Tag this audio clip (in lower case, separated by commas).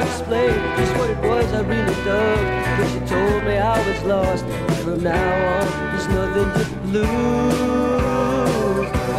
country, music